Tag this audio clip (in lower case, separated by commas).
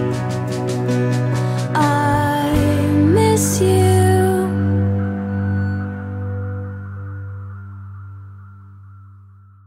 music